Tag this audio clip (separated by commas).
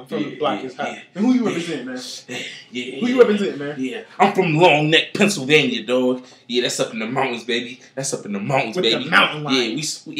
Speech